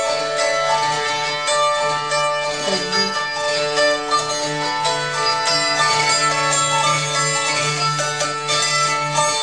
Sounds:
Pizzicato

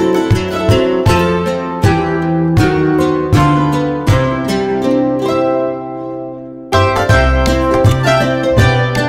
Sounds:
Music

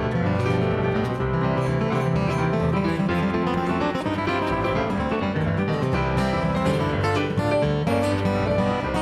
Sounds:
Music, Plucked string instrument, Musical instrument, Acoustic guitar

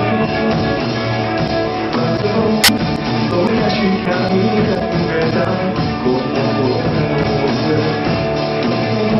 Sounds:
Music, Blues

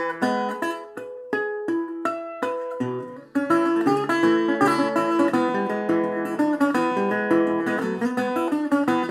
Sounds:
Music

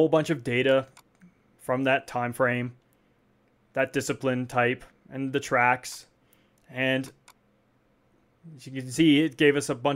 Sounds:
Speech

